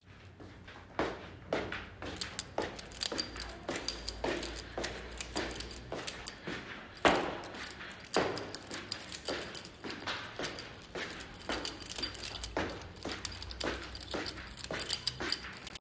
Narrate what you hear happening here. walking down the stairs, while jingling keychain at the same time in my pocket